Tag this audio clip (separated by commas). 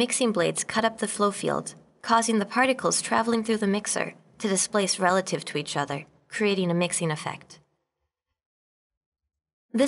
Speech